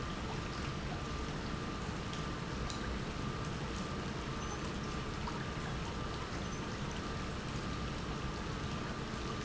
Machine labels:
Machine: pump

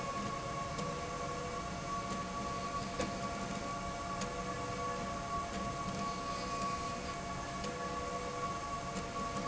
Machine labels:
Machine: slide rail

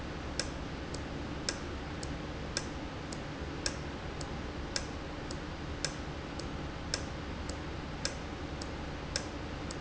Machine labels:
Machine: valve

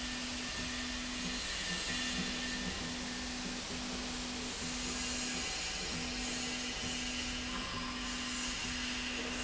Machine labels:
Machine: slide rail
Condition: normal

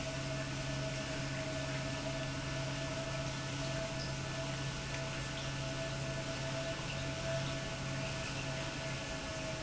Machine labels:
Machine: pump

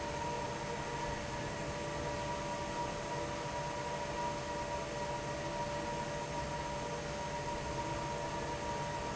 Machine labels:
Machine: fan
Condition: normal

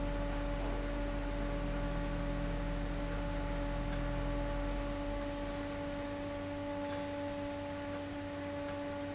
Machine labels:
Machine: fan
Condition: abnormal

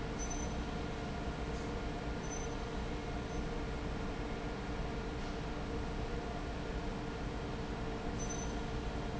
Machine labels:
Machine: fan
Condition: normal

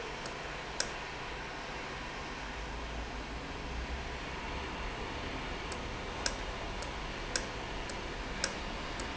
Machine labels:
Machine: valve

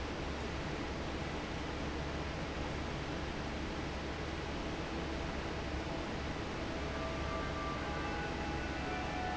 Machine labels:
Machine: fan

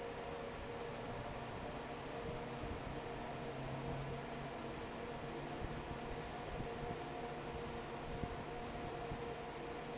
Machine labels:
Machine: fan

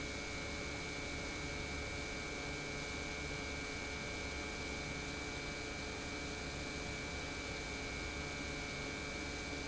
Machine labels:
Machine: pump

